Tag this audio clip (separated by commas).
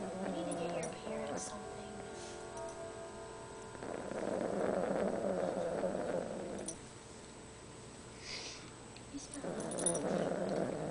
Animal, Music, Snoring, Speech